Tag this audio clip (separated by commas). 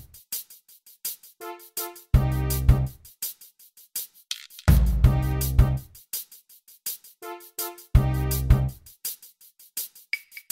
Music